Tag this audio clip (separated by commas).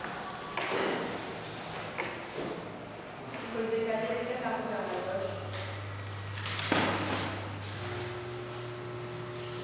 Music, Speech, Musical instrument